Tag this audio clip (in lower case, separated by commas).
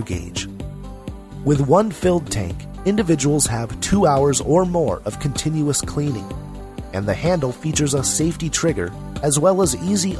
speech, music